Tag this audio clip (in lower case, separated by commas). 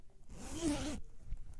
zipper (clothing), home sounds